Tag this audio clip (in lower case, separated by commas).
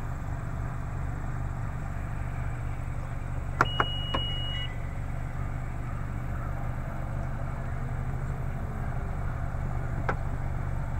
vehicle, outside, rural or natural, car